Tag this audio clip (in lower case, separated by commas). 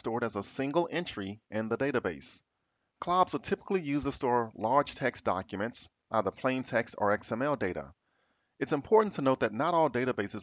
speech